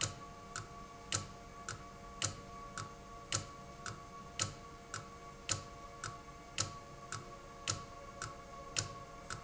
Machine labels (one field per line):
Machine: valve